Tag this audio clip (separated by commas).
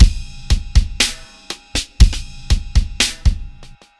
Percussion, Drum kit, Musical instrument, Music, Drum